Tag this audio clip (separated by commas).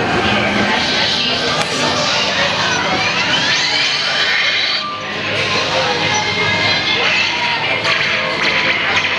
Music, Speech